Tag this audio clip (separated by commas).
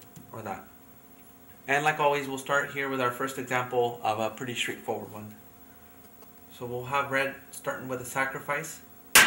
Speech